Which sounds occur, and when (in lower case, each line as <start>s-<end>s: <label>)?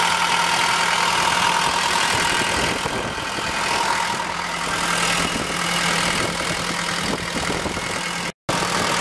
0.0s-8.3s: heavy engine (low frequency)
0.0s-8.3s: wind
1.4s-3.2s: wind noise (microphone)
3.4s-3.6s: wind noise (microphone)
4.2s-4.4s: wind noise (microphone)
4.6s-5.5s: wind noise (microphone)
5.8s-6.8s: wind noise (microphone)
7.1s-7.9s: wind noise (microphone)
8.4s-9.0s: heavy engine (low frequency)
8.5s-9.0s: wind